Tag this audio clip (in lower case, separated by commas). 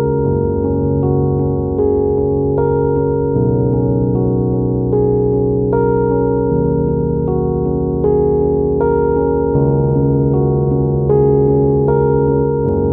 musical instrument, keyboard (musical), music, piano